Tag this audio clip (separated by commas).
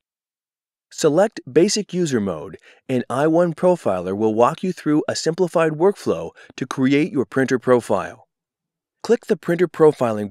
Speech